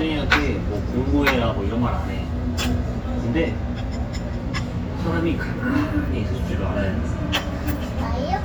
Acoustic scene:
restaurant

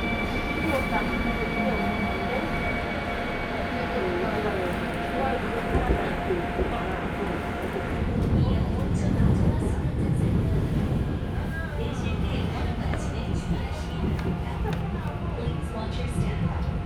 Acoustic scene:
subway train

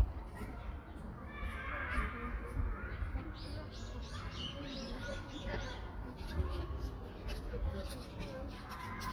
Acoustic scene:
residential area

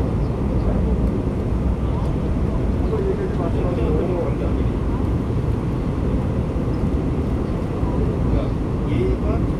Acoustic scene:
subway train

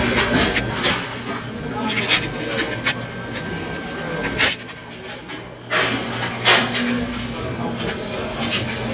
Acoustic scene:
restaurant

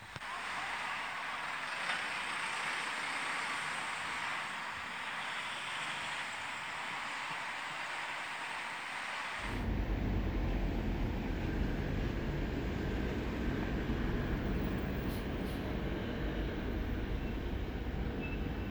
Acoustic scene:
street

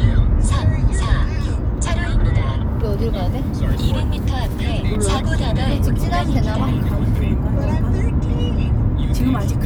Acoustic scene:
car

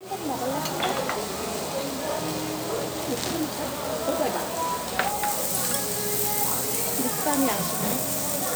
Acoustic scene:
restaurant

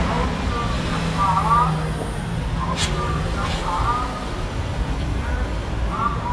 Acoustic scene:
street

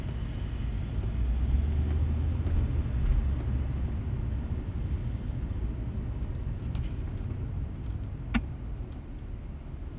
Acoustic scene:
car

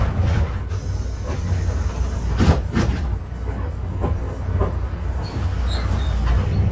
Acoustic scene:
bus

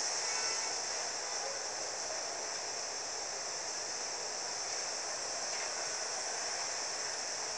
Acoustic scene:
street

